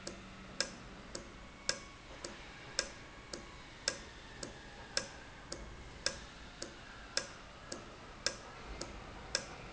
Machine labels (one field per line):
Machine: valve